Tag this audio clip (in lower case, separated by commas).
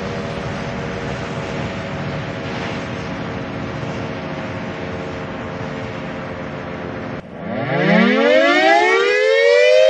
civil defense siren, siren